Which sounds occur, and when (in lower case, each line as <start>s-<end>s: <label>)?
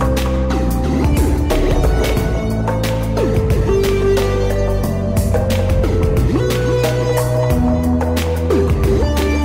0.0s-9.4s: music